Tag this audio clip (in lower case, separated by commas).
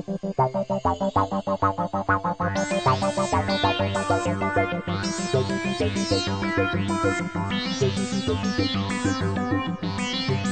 new-age music, music, synthesizer